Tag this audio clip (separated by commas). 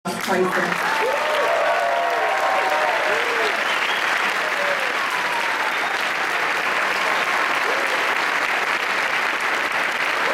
people clapping, Applause